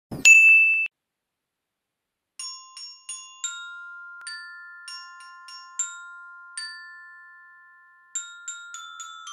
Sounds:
playing glockenspiel

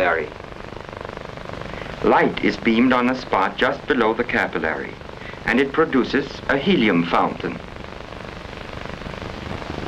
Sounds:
Speech

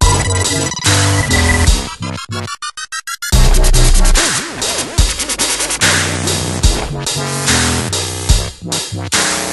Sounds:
Music, Electronic music, Dubstep

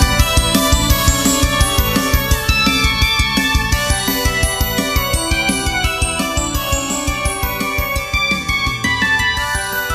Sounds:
Music

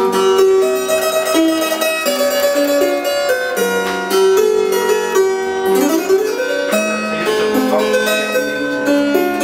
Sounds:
Music, Sitar

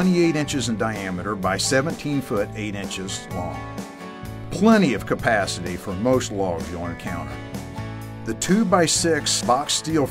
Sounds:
Music, Speech

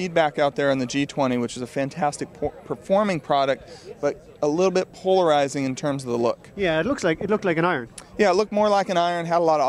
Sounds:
Speech

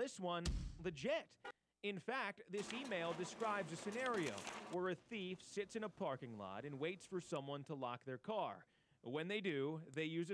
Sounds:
Speech

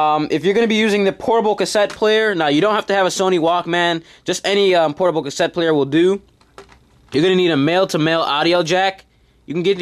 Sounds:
Speech

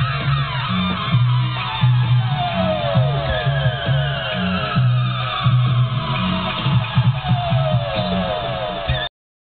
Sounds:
Music, Siren

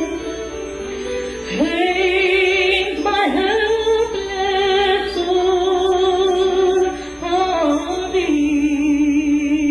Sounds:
Singing, Female singing, Music

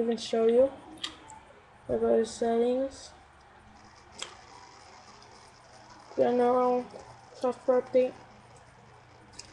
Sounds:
Speech

